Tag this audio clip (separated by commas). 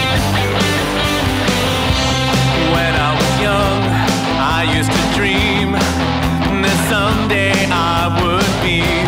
Musical instrument, Guitar, Music